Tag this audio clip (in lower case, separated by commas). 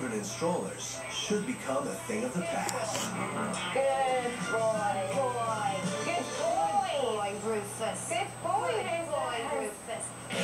speech, music